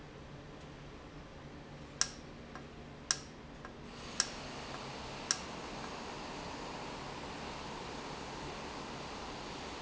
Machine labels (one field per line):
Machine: valve